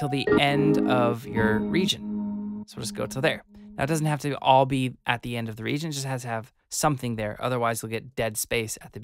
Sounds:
reversing beeps

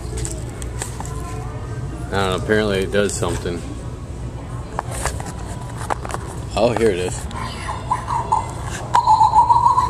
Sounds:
Speech, inside a public space

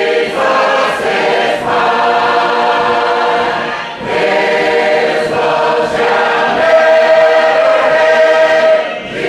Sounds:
Singing, Choir, A capella, Gospel music

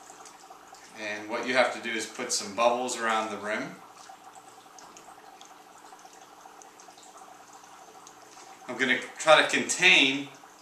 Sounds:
Speech

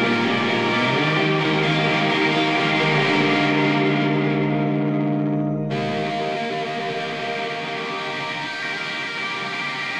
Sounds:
Independent music, Music

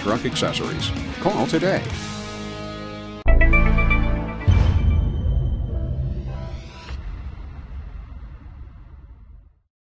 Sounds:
Music, Speech

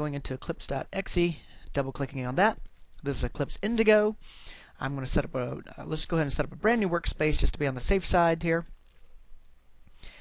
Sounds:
Speech

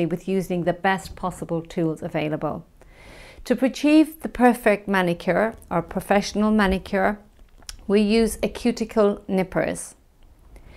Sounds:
Speech

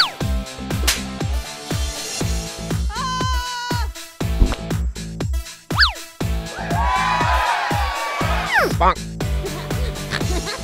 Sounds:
Music

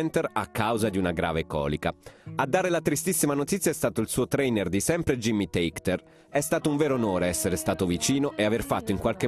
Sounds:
Music, Speech

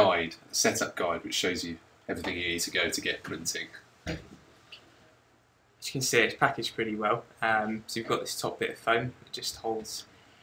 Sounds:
Speech

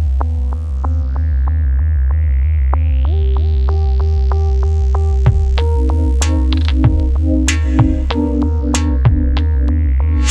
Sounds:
Music

